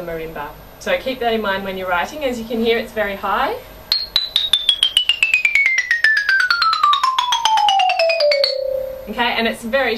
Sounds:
Mallet percussion, Glockenspiel, Marimba

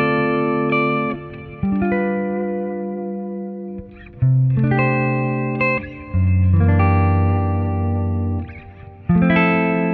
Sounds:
Electric guitar, Strum, Acoustic guitar, Plucked string instrument, playing electric guitar, Musical instrument, Guitar, Music

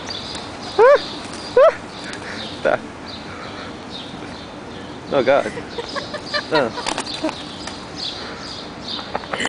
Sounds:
outside, urban or man-made, Speech, Pigeon

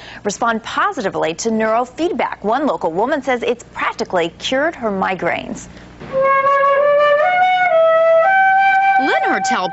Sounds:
Speech, Music

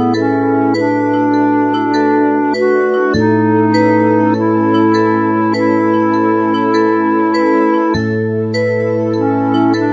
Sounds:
Music

